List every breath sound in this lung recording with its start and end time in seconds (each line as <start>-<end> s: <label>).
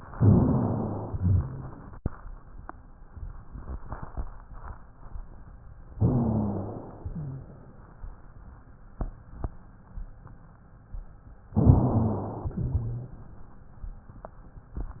0.09-1.12 s: inhalation
0.17-1.10 s: wheeze
1.12-1.76 s: wheeze
1.12-1.90 s: exhalation
5.98-7.00 s: inhalation
5.98-7.00 s: wheeze
7.02-7.91 s: exhalation
7.02-7.91 s: wheeze
11.56-12.56 s: inhalation
11.59-12.41 s: wheeze
12.52-13.28 s: exhalation
12.52-13.28 s: wheeze